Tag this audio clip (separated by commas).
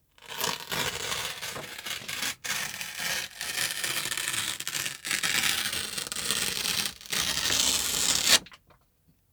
Tearing